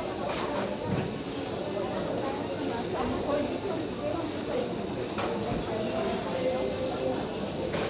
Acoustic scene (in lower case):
crowded indoor space